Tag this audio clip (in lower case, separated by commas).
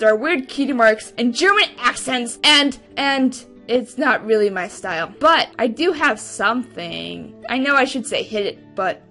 monologue